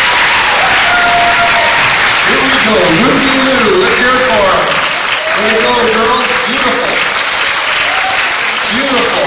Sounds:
Applause, Speech

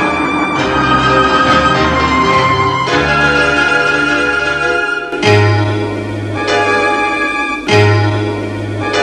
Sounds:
Music

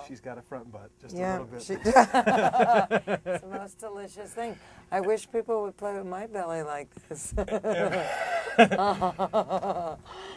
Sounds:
Speech

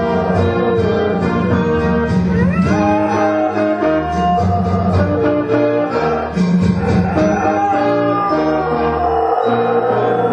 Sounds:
Howl, Domestic animals, Music

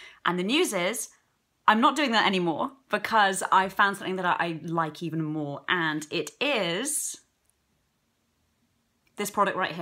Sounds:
Speech

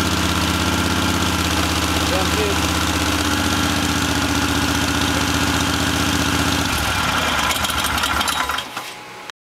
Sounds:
Vibration, Speech, Vehicle, Engine, Idling

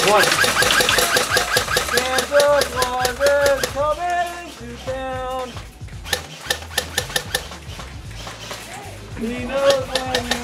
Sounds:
outside, urban or man-made, Music, Speech

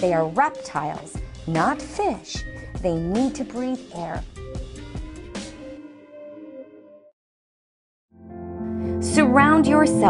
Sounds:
Speech, Music

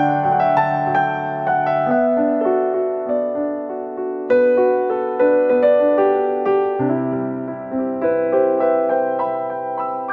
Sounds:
Speech

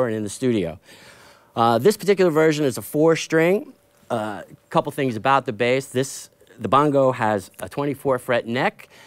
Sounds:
Speech

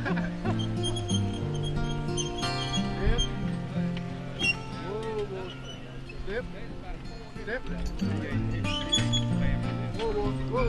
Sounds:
Speech, Music

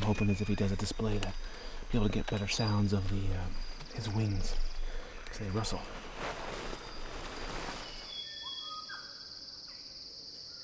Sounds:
Speech

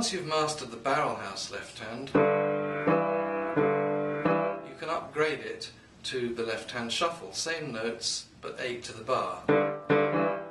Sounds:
Speech, Music

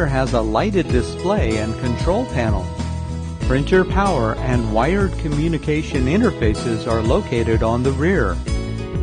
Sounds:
Speech, Music

